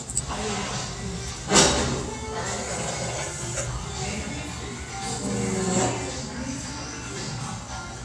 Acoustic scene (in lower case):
restaurant